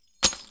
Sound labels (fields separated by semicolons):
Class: object falling; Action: being thrown; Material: metal